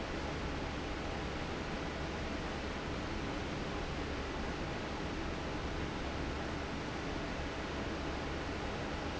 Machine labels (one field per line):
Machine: fan